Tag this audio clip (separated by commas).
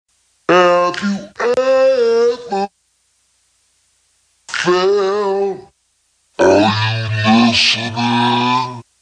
Speech, Music